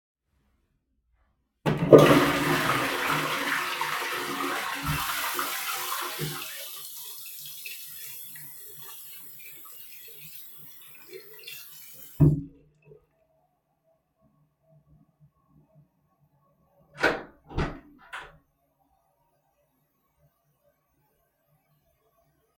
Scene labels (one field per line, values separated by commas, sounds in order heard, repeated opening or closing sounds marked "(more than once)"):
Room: bathroom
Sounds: toilet flushing, running water, door